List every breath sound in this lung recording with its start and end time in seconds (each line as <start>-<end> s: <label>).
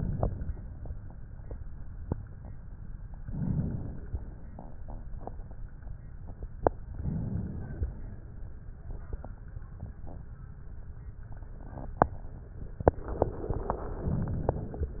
3.13-4.43 s: inhalation
6.83-8.24 s: inhalation
14.04-15.00 s: inhalation